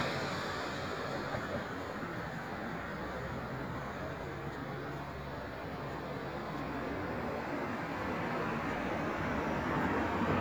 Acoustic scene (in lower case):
street